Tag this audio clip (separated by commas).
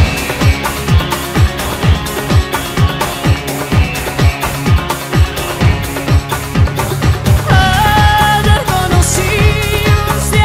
Music